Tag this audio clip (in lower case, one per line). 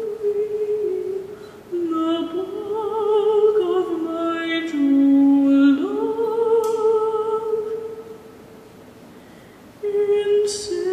singing
a capella